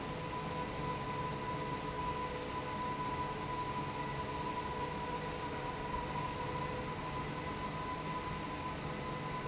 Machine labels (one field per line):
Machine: fan